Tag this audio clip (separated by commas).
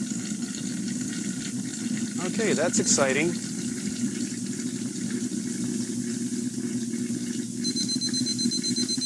inside a large room or hall, Boiling, Speech, Liquid